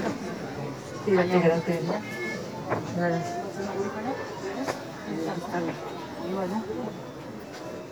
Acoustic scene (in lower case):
crowded indoor space